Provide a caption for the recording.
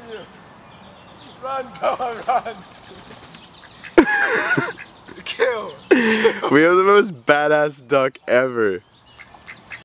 A man yelling and ducks in the background